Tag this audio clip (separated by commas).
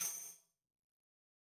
Musical instrument, Tambourine, Music, Percussion